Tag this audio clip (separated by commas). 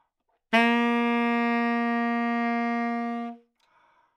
Musical instrument, Wind instrument, Music